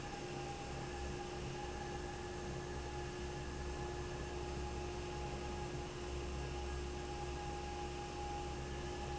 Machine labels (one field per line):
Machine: fan